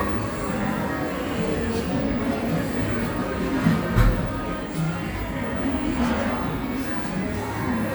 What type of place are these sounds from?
cafe